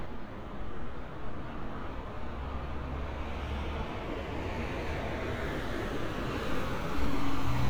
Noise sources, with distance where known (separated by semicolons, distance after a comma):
large-sounding engine, near